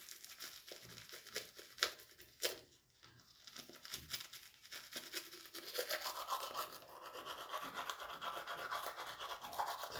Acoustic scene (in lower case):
restroom